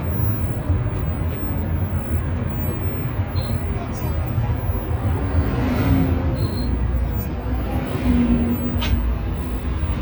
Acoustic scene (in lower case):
bus